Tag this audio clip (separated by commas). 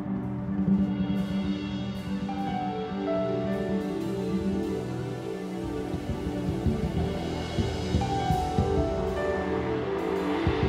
Music